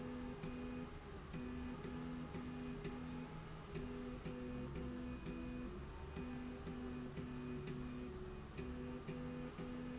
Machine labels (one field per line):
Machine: slide rail